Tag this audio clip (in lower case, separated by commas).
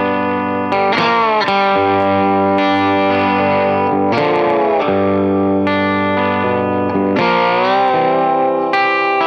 playing steel guitar